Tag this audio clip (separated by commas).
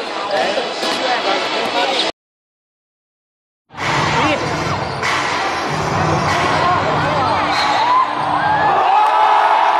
Music, Crowd, Speech, Basketball bounce